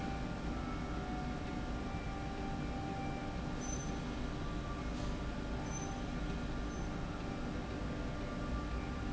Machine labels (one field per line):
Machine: slide rail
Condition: normal